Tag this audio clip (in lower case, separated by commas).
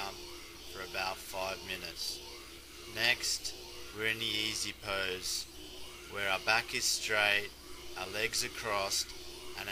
speech